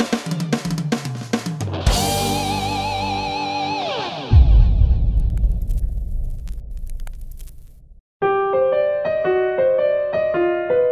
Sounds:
Drum kit, Snare drum, Music, Cymbal, Bass drum

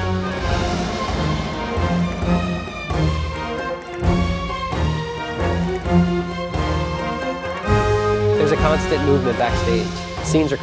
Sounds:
Music

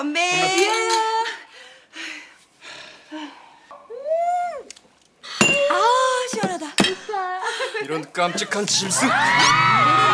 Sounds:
Speech, inside a large room or hall

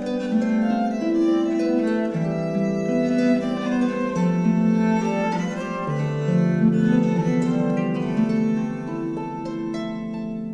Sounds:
Pizzicato, Harp, Bowed string instrument, fiddle

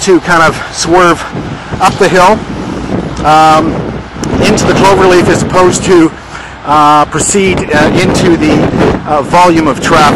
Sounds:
Speech

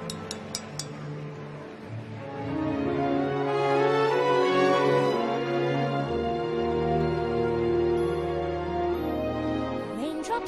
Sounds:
Music

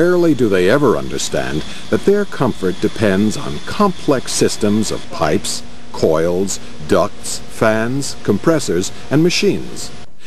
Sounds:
Speech

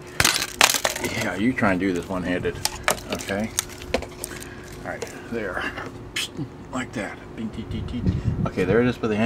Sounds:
Speech

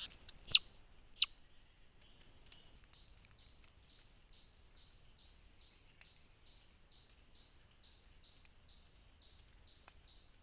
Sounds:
chipmunk chirping

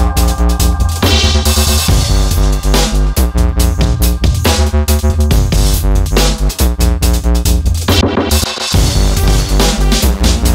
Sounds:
Music

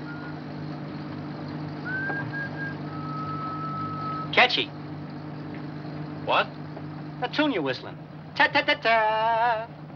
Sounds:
Speech

